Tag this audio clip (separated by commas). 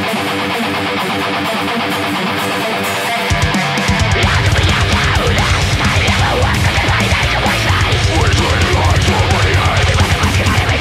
Music